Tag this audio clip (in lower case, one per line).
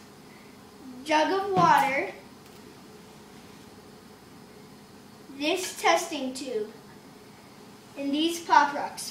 speech